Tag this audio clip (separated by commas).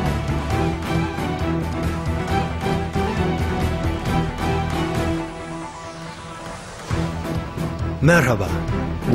Music, Speech